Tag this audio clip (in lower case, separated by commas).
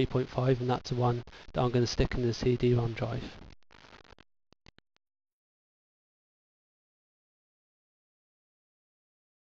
speech